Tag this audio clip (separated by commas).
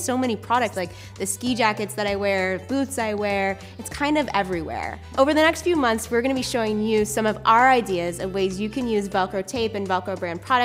Speech, Music